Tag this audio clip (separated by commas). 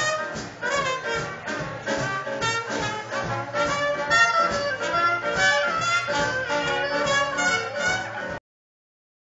Music